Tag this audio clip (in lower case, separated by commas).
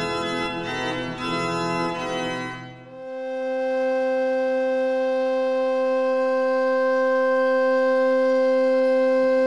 music